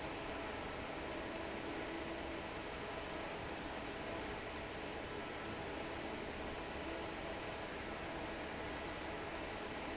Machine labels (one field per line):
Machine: fan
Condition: normal